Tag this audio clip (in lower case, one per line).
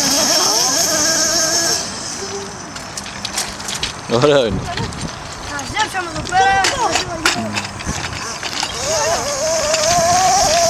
speech